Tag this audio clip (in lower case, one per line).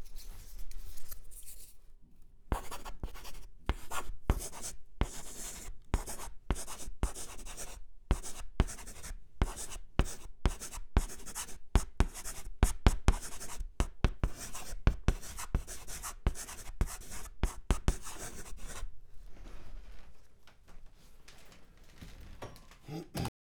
home sounds
writing